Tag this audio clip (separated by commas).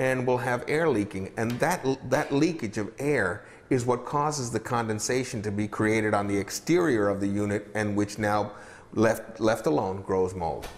Speech